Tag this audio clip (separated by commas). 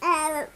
Human voice, Speech